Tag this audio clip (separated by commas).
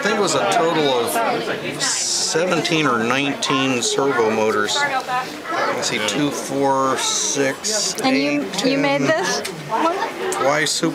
Speech